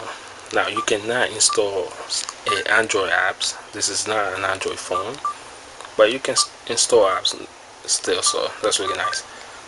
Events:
[0.00, 9.65] mechanisms
[0.44, 0.53] tick
[0.48, 2.23] male speech
[0.72, 0.83] bleep
[0.81, 0.86] tick
[1.42, 1.54] bleep
[1.48, 1.56] tick
[2.16, 2.23] tick
[2.44, 3.50] male speech
[2.44, 2.63] bleep
[3.73, 5.22] male speech
[4.89, 4.97] bleep
[5.03, 5.17] tick
[5.19, 5.31] bleep
[5.94, 6.43] male speech
[6.30, 6.43] bleep
[6.62, 7.40] male speech
[7.80, 9.22] male speech
[8.18, 8.31] bleep
[8.80, 9.14] bleep

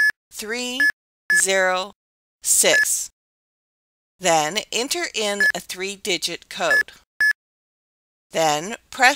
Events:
[0.00, 0.09] dtmf
[0.26, 0.83] woman speaking
[0.78, 0.88] dtmf
[1.25, 1.89] woman speaking
[1.26, 1.42] dtmf
[2.41, 3.05] woman speaking
[2.69, 2.87] dtmf
[4.21, 7.04] woman speaking
[5.38, 5.51] dtmf
[6.67, 6.83] dtmf
[7.19, 7.33] dtmf
[8.27, 8.77] woman speaking
[8.88, 9.15] woman speaking

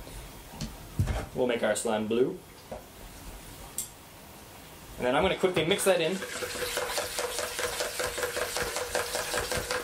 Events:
[0.00, 0.28] surface contact
[0.00, 9.83] mechanisms
[0.53, 0.74] tap
[0.95, 1.21] tap
[1.11, 1.27] surface contact
[1.31, 2.42] man speaking
[2.52, 2.64] generic impact sounds
[2.66, 2.84] tap
[3.14, 3.25] generic impact sounds
[3.73, 3.90] generic impact sounds
[4.55, 4.84] surface contact
[4.92, 6.26] man speaking
[5.50, 5.63] tap
[5.93, 9.83] stir

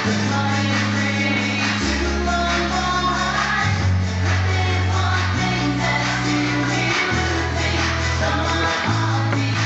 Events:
[0.01, 9.65] music
[0.03, 3.86] female singing
[4.23, 9.65] female singing

